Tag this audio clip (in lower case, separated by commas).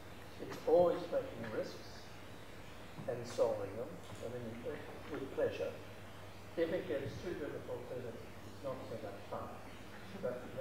man speaking, monologue, speech